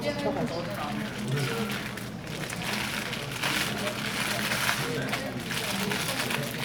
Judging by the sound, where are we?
in a crowded indoor space